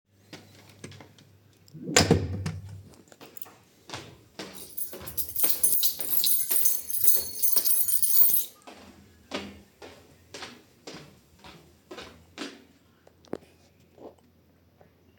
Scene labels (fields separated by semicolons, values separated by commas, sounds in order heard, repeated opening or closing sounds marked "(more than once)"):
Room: hallway, bedroom; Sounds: door, footsteps, keys